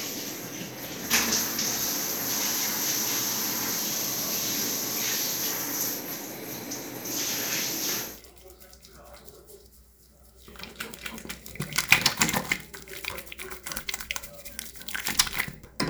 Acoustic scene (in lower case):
restroom